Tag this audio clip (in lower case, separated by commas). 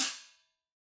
hi-hat, percussion, musical instrument, music, cymbal